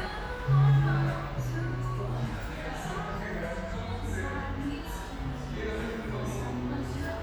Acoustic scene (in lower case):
cafe